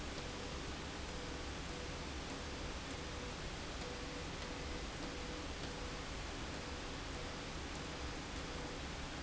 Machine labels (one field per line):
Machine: slide rail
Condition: abnormal